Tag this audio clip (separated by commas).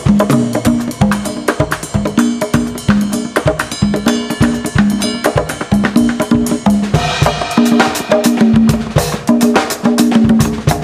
Music of Latin America, Musical instrument, Music